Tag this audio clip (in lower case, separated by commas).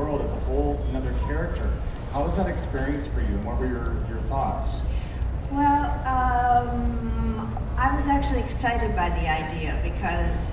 conversation, monologue, speech, man speaking, female speech